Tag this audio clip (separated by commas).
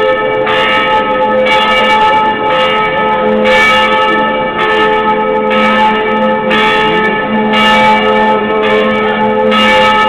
Church bell